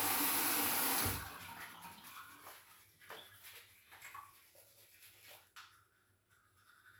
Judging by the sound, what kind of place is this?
restroom